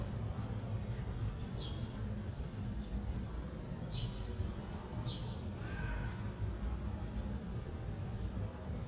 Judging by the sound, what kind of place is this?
residential area